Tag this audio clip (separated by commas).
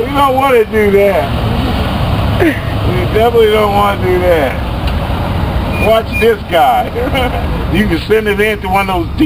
Speech, Vehicle